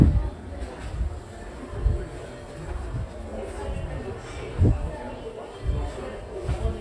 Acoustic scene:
crowded indoor space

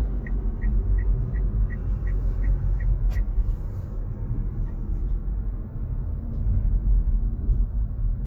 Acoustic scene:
car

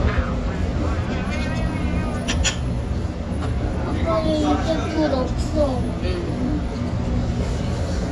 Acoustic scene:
restaurant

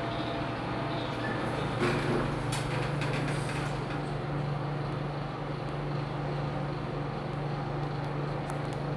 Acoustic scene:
elevator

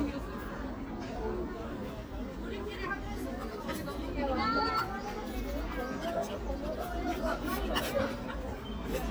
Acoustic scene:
park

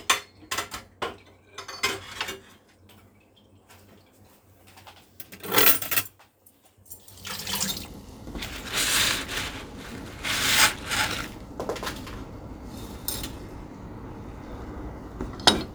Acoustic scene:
kitchen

